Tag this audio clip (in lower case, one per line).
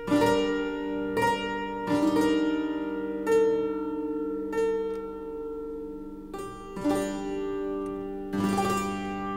harp
music
piano
keyboard (musical)